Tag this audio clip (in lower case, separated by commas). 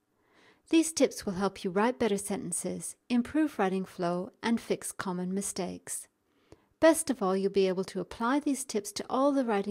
speech